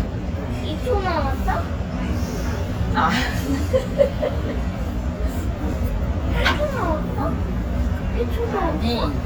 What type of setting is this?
restaurant